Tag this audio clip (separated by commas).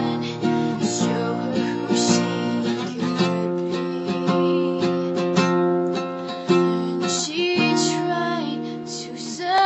Music, Female singing